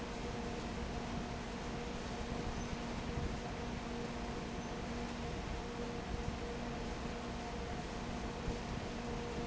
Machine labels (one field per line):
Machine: fan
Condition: abnormal